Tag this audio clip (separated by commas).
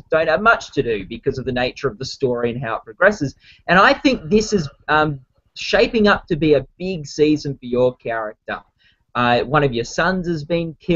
Speech